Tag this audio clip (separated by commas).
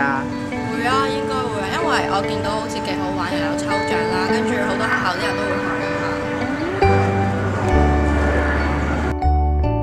Music, Speech